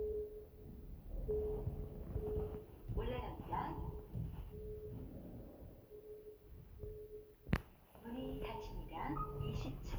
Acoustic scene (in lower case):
elevator